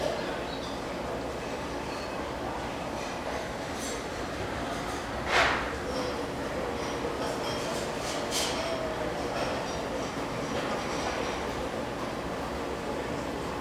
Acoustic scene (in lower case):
restaurant